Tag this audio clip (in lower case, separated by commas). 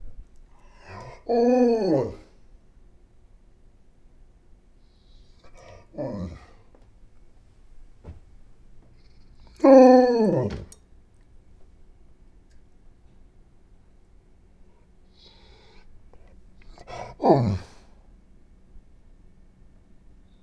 animal, dog, domestic animals